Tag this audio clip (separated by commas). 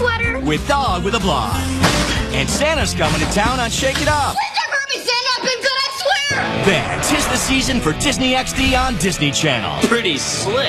Speech, Music